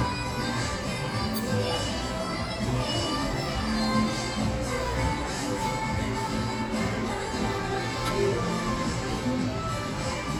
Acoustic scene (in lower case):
cafe